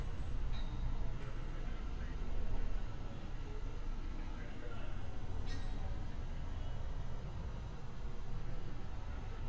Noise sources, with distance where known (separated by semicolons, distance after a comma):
unidentified human voice, far